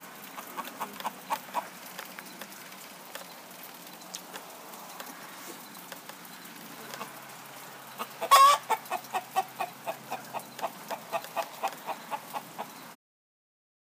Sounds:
Animal, rooster, Fowl, livestock

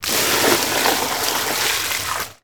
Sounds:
Liquid, Splash

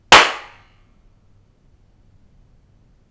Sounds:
Hands, Clapping

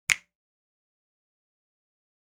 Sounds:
Finger snapping, Hands

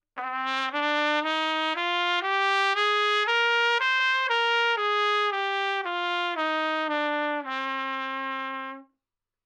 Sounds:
Music, Trumpet, Brass instrument, Musical instrument

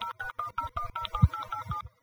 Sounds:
Telephone, Alarm

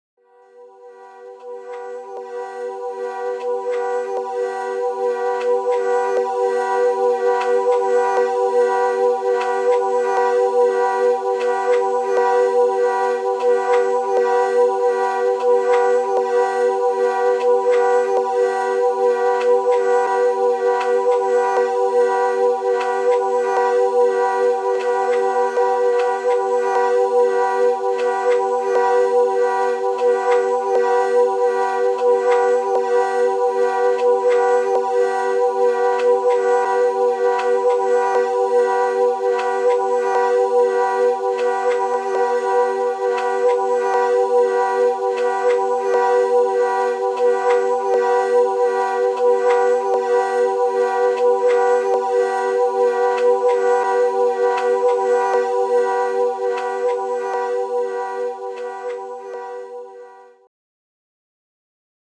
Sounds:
Wind instrument, Music, Musical instrument

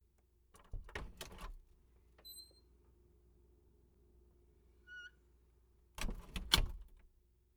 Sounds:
Door, home sounds, Squeak, Wood

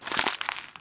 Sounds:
Crumpling

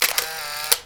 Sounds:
Mechanisms, Camera

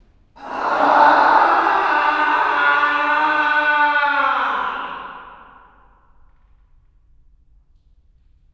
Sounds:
Screaming, Human voice

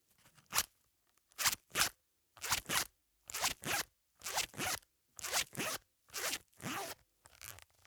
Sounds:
home sounds, Zipper (clothing)

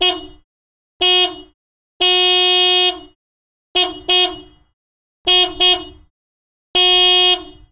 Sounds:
Vehicle horn, Motor vehicle (road), Alarm, Truck, Car, Vehicle

